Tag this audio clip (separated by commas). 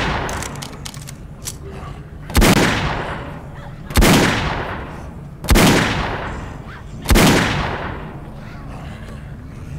Sound effect